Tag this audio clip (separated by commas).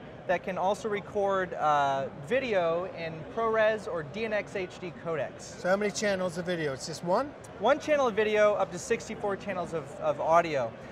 Speech